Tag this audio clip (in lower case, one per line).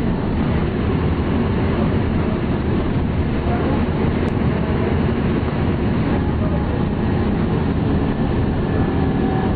bus
vehicle